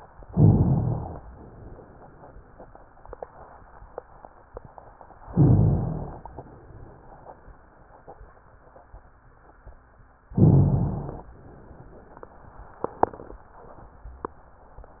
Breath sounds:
0.23-1.16 s: inhalation
0.23-1.16 s: rhonchi
5.26-6.21 s: inhalation
5.26-6.21 s: rhonchi
10.38-11.33 s: inhalation
10.38-11.33 s: rhonchi

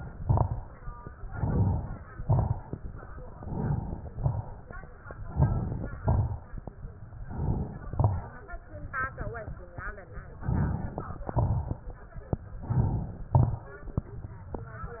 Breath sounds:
0.03-0.75 s: exhalation
0.03-0.75 s: crackles
1.13-2.04 s: inhalation
1.13-2.04 s: crackles
2.10-2.82 s: exhalation
2.10-2.82 s: crackles
3.24-4.06 s: inhalation
3.24-4.06 s: crackles
4.09-4.91 s: exhalation
4.09-4.91 s: crackles
5.16-5.97 s: inhalation
5.16-5.97 s: crackles
5.99-6.81 s: exhalation
5.99-6.81 s: crackles
7.13-7.85 s: inhalation
7.13-7.85 s: crackles
7.88-8.61 s: exhalation
7.88-8.61 s: crackles
10.38-11.20 s: inhalation
10.38-11.20 s: crackles
11.25-11.92 s: exhalation
11.25-11.92 s: crackles
12.59-13.29 s: inhalation
12.59-13.29 s: crackles
13.31-14.01 s: exhalation
13.31-14.01 s: crackles

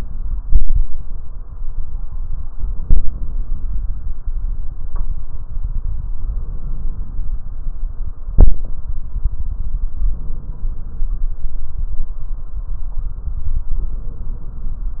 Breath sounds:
2.57-3.87 s: inhalation
6.12-7.42 s: inhalation
9.99-11.29 s: inhalation
13.77-15.00 s: inhalation

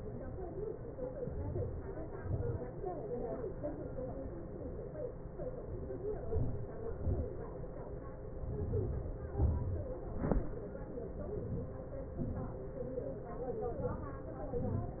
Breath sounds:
6.37-6.74 s: inhalation
6.99-7.36 s: exhalation
8.52-9.16 s: inhalation
9.40-9.92 s: exhalation
13.86-14.40 s: inhalation
14.61-15.00 s: exhalation

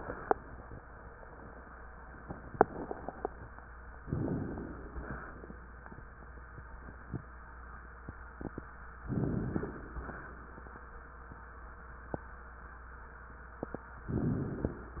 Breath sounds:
4.02-4.95 s: inhalation
4.96-6.02 s: exhalation
9.09-9.91 s: inhalation
9.09-9.91 s: crackles
9.92-10.93 s: exhalation

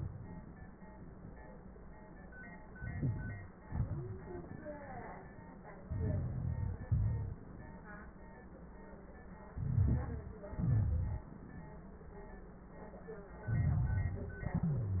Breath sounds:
2.74-3.62 s: inhalation
2.74-3.62 s: crackles
3.64-4.26 s: exhalation
3.64-4.26 s: crackles
5.84-6.86 s: inhalation
5.84-6.86 s: crackles
6.86-7.44 s: exhalation
6.87-7.44 s: crackles
9.53-10.49 s: crackles
9.53-10.50 s: inhalation
10.49-11.40 s: exhalation
10.49-11.40 s: crackles
13.44-14.47 s: inhalation
13.44-14.47 s: crackles
14.48-15.00 s: exhalation
14.55-15.00 s: wheeze

